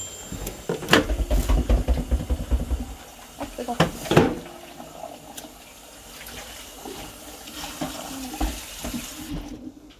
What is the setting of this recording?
kitchen